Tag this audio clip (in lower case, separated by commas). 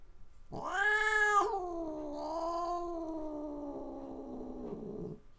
pets, cat, animal